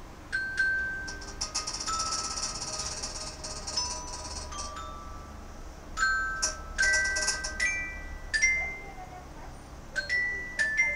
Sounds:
speech, music

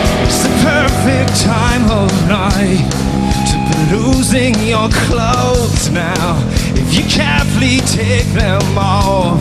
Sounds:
music

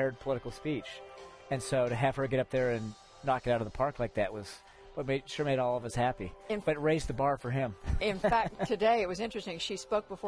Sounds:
speech, music, narration, conversation, man speaking

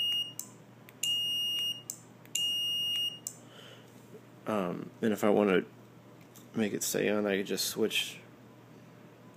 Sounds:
smoke detector, speech

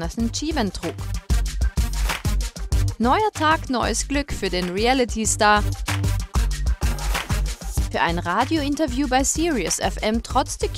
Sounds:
music, speech

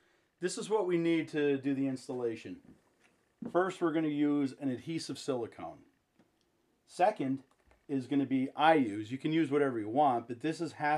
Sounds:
speech

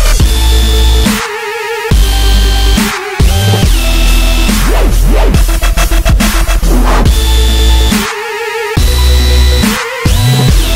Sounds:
dubstep, music, electronic music

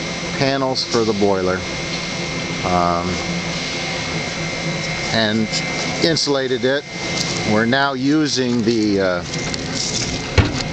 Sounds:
speech, outside, urban or man-made

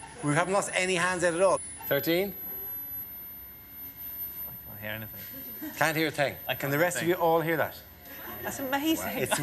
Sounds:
speech

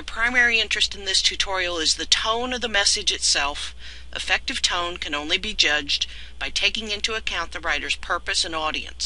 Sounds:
speech

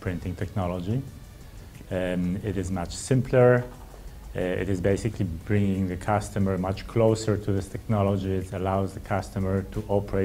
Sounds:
speech, music

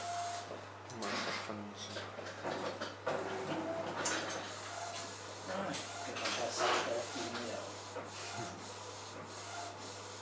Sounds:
speech, printer

